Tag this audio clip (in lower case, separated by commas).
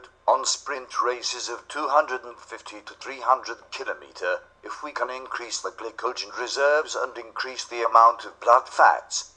speech